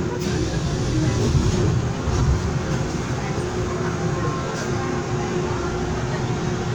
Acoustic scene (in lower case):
subway train